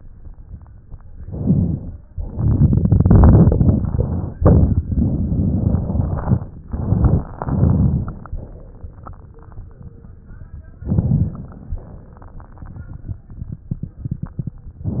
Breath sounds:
1.21-2.03 s: inhalation
1.21-2.03 s: crackles
2.15-4.30 s: exhalation
2.15-4.30 s: crackles
4.36-4.85 s: inhalation
4.36-4.85 s: crackles
4.86-6.44 s: exhalation
4.86-6.44 s: crackles
6.69-7.30 s: inhalation
6.69-7.30 s: crackles
7.38-8.38 s: exhalation
7.38-8.38 s: crackles
10.84-11.68 s: inhalation
10.84-11.68 s: crackles
11.74-13.21 s: exhalation
11.74-13.21 s: crackles
14.82-15.00 s: inhalation
14.82-15.00 s: crackles

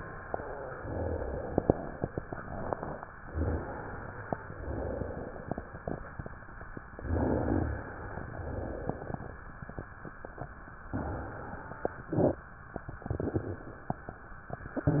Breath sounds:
3.32-4.35 s: inhalation
4.48-5.50 s: exhalation
6.83-7.86 s: inhalation
6.85-7.88 s: rhonchi
8.03-9.05 s: exhalation
10.91-11.94 s: inhalation

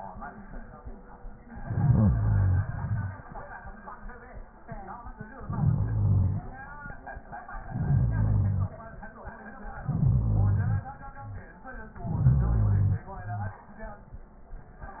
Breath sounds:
1.50-2.65 s: inhalation
2.67-3.74 s: exhalation
5.44-6.51 s: inhalation
7.65-8.71 s: inhalation
9.78-10.84 s: inhalation
12.02-13.09 s: inhalation

